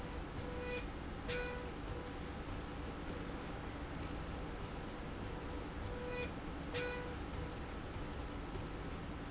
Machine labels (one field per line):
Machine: slide rail